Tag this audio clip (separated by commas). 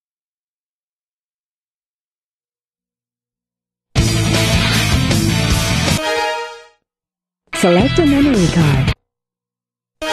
Speech, Music